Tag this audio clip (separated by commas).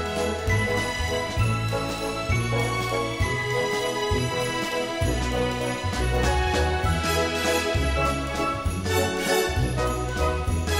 Music